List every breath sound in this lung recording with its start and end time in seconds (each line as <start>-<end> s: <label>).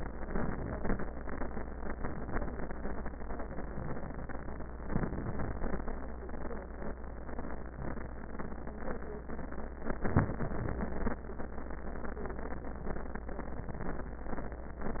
4.84-5.87 s: inhalation
10.05-11.21 s: inhalation